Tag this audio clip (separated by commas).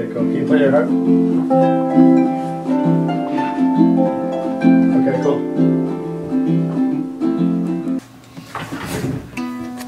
Speech, Music